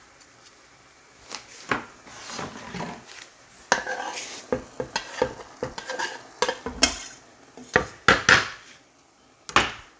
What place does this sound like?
kitchen